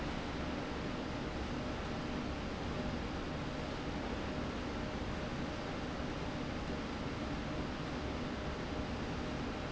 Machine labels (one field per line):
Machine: slide rail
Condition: normal